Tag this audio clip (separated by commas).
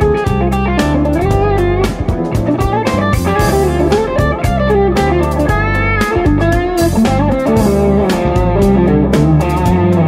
Music